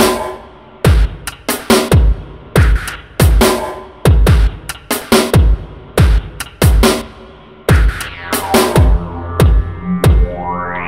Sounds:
Electronic music, Dubstep, Music

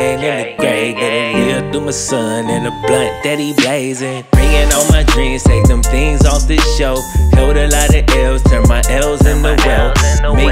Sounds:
rapping

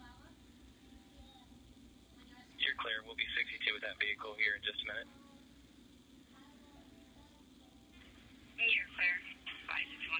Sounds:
Speech, Radio

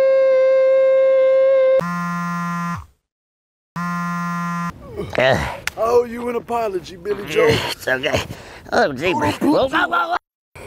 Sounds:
yodelling

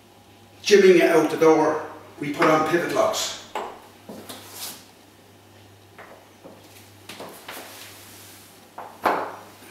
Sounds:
Speech

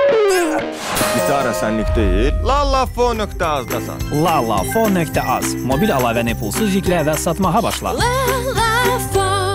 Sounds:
Music, Strum, Musical instrument, Speech, Guitar, Plucked string instrument

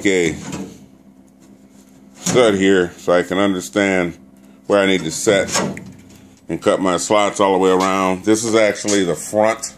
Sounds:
Speech

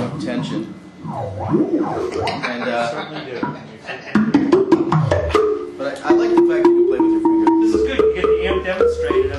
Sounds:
Music, Speech

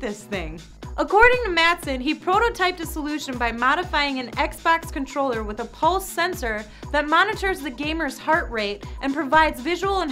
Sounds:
Speech, Music

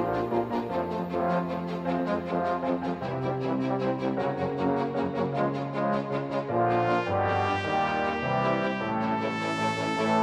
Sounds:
Trombone

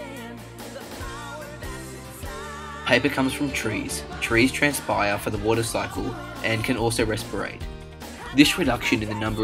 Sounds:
Music, Speech

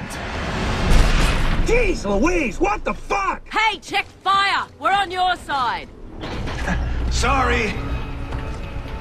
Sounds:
Speech, Music

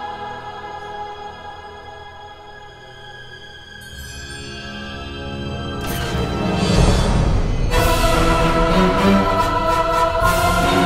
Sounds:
Theme music, Music

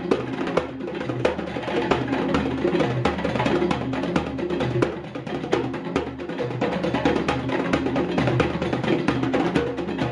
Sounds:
playing djembe

